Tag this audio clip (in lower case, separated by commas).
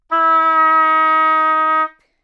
woodwind instrument, musical instrument, music